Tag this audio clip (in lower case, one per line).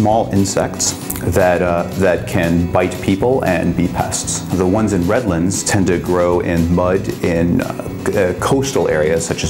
music
speech